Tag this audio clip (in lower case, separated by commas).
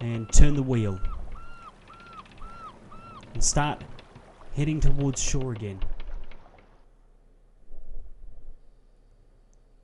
speech, outside, rural or natural